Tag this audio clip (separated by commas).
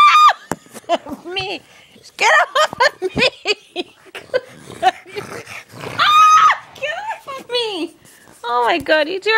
Domestic animals, Animal, Speech, Dog